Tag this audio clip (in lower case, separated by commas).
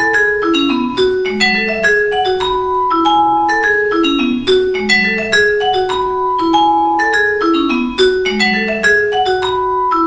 music, playing marimba, xylophone